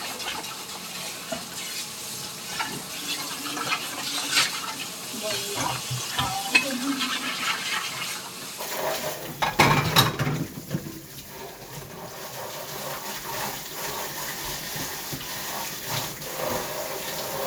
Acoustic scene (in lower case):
kitchen